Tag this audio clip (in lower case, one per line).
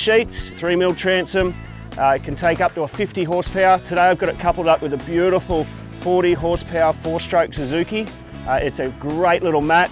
music
speech